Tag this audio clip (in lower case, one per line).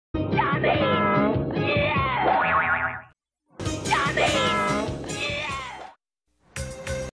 speech
sound effect
music